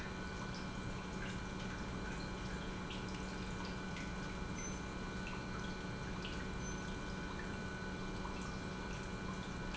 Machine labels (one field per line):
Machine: pump